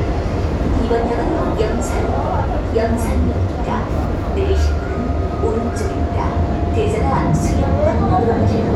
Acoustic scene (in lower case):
subway train